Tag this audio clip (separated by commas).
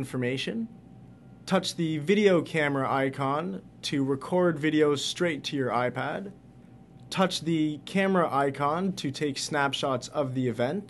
Speech